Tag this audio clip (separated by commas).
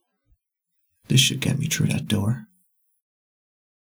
Human voice, Speech